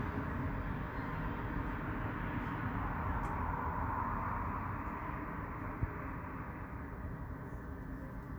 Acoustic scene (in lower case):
street